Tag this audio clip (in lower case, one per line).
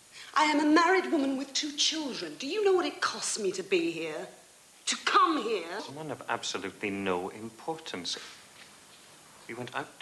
speech